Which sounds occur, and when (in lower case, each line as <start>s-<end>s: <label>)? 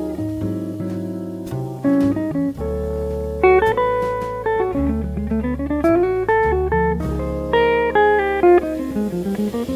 0.0s-9.7s: mechanisms
0.0s-9.7s: music